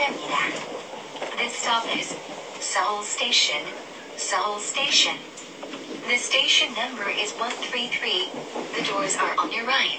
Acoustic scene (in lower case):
subway train